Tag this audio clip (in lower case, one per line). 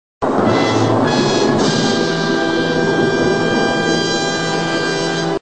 music